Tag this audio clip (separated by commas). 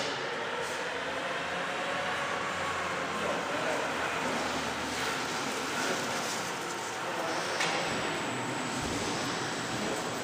Vehicle